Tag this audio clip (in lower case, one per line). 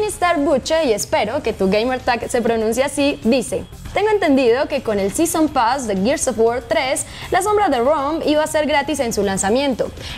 music
speech